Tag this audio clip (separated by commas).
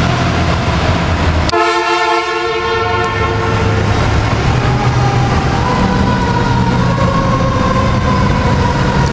Vehicle